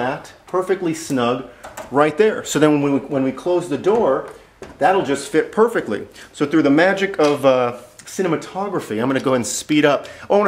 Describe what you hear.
Person giving a talk with clicking noises